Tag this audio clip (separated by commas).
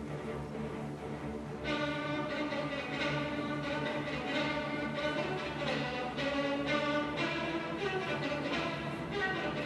Musical instrument, Violin, Music